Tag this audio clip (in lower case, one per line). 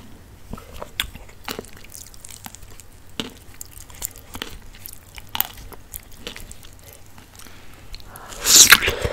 people slurping